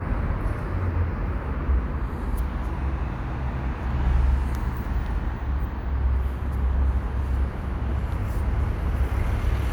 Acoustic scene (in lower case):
residential area